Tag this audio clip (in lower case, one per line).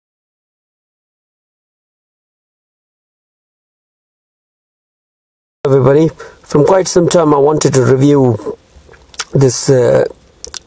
speech